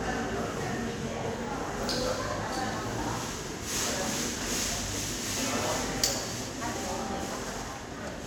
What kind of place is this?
subway station